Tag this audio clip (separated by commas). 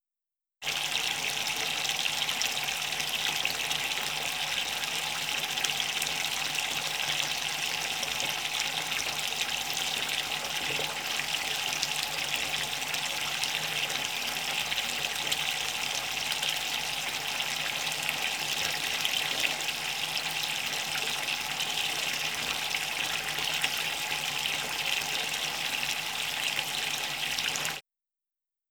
Fill (with liquid), Liquid, Domestic sounds, Bathtub (filling or washing)